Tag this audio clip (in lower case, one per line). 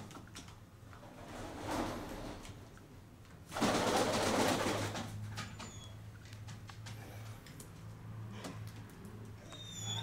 bird
inside a small room